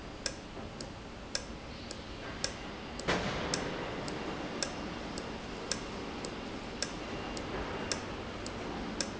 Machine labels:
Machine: valve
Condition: normal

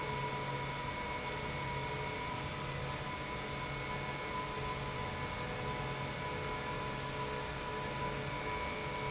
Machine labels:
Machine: pump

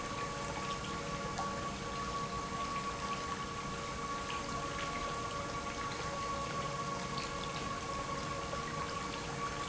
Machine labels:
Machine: pump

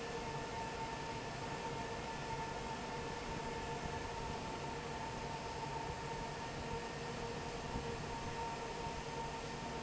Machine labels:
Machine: fan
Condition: normal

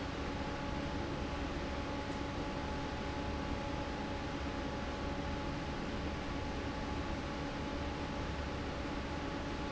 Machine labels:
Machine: fan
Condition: normal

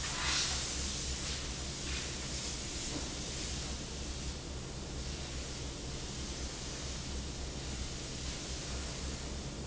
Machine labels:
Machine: fan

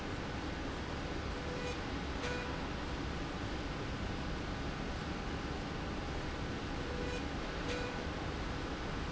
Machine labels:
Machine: slide rail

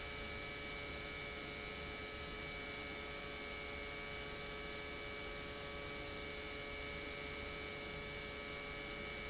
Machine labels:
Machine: pump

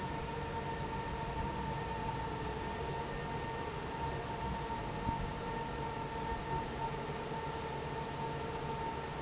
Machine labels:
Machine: fan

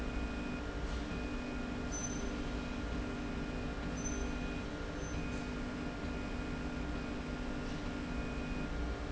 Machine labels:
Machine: slide rail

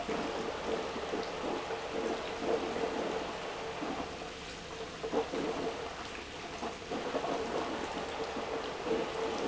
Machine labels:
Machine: pump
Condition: abnormal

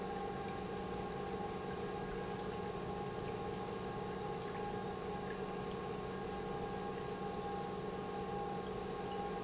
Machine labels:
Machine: pump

